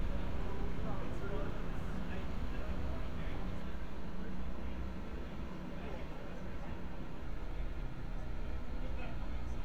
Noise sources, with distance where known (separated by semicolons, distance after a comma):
person or small group talking, far